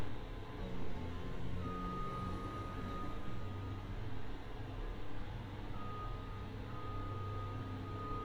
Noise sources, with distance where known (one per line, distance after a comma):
engine of unclear size
reverse beeper